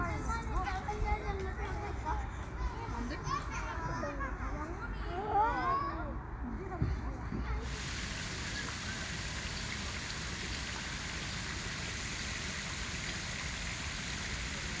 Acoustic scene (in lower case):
park